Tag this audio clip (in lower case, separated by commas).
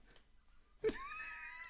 human voice